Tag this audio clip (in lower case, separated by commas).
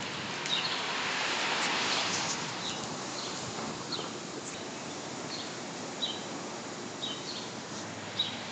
animal, bird, wild animals